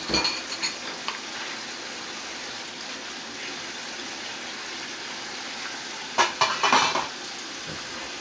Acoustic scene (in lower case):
kitchen